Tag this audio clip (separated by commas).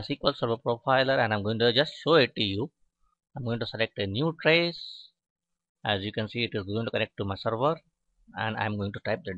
Speech